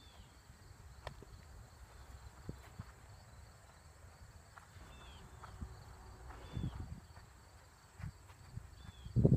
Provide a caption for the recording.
Wind blowing, birds chirp, some horse footsteps on dirt